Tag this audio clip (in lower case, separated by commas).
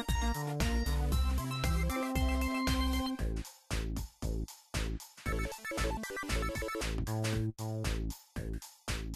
music